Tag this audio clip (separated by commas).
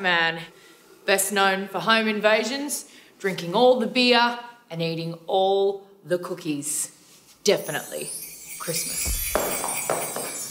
Speech, Christmas music, Music